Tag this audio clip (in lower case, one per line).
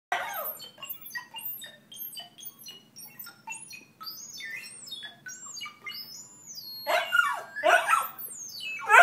dog
canids
animal
pets